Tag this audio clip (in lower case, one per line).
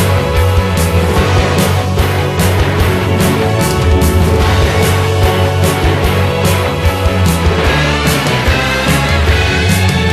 video game music